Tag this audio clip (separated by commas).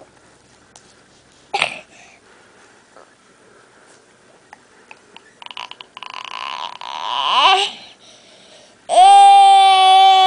Baby cry, baby crying